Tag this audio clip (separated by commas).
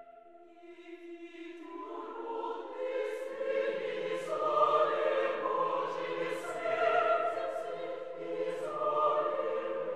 Choir, Music, Chant